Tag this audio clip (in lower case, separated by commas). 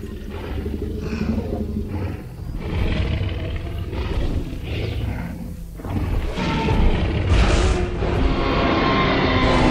dinosaurs bellowing